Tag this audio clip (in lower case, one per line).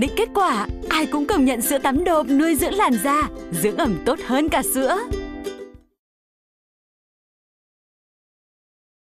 music
speech